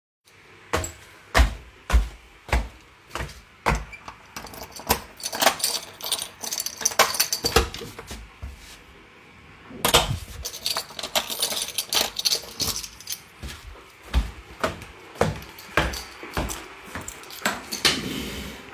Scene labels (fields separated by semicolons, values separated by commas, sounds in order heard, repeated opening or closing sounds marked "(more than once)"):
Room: hallway, bedroom; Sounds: footsteps, keys, door (more than once)